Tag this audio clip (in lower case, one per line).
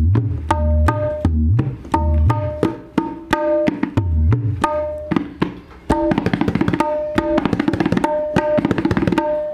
playing tabla